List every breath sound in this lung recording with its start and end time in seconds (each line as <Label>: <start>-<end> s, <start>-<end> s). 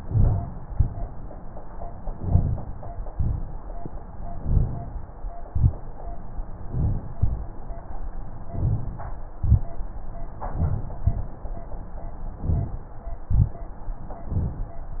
Inhalation: 0.00-0.66 s, 2.13-3.06 s, 4.28-5.20 s, 6.37-7.16 s, 8.47-9.27 s, 10.34-11.02 s, 12.22-12.90 s, 14.20-14.88 s
Exhalation: 0.68-1.35 s, 3.15-4.08 s, 5.42-6.27 s, 7.14-7.94 s, 9.35-10.14 s, 11.02-11.70 s, 13.24-13.93 s
Crackles: 0.68-1.00 s, 2.11-2.66 s, 3.12-3.55 s, 5.47-5.78 s, 9.37-9.67 s, 11.02-11.33 s, 12.44-12.75 s, 13.28-13.59 s